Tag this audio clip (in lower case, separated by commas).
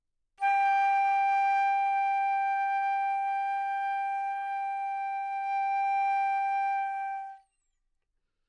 music, wind instrument, musical instrument